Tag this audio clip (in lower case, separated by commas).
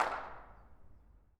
hands, clapping